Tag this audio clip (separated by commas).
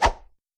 swish